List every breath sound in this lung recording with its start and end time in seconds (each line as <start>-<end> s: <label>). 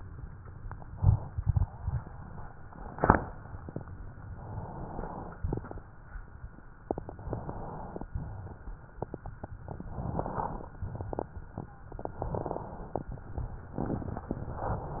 4.34-5.39 s: inhalation
5.43-5.79 s: exhalation
5.43-5.79 s: crackles
6.93-8.10 s: inhalation
6.93-8.10 s: crackles
8.10-9.01 s: wheeze
9.87-10.78 s: inhalation
9.89-10.76 s: crackles
10.81-11.42 s: exhalation
10.81-11.42 s: crackles
12.16-13.07 s: inhalation
12.16-13.07 s: crackles
13.78-14.31 s: crackles